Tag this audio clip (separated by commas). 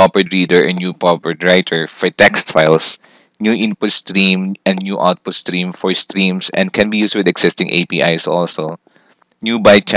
Speech